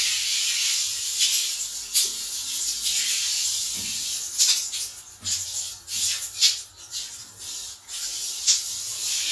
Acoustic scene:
restroom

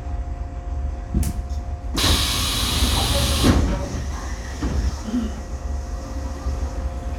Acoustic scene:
subway train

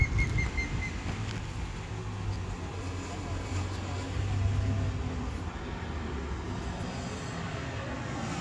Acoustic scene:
street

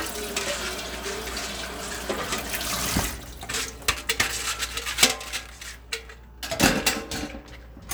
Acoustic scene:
kitchen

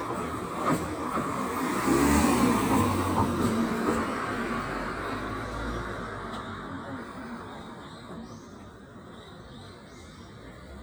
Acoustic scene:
residential area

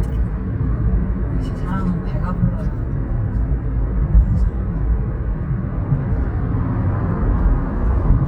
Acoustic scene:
car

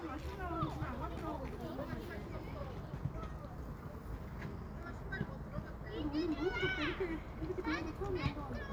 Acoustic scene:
residential area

